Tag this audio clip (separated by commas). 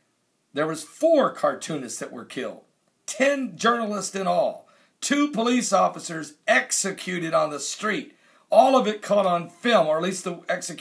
Speech